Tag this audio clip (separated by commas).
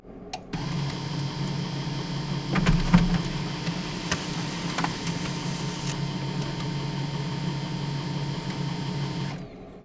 Printer, Mechanisms